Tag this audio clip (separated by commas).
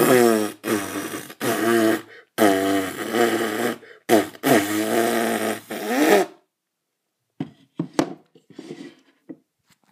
inside a small room